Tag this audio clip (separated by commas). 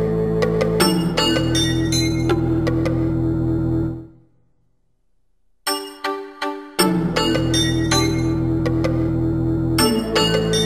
Music